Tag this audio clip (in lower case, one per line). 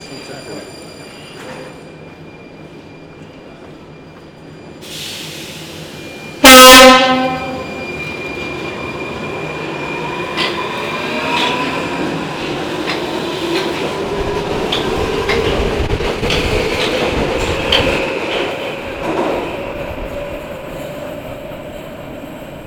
rail transport
underground
vehicle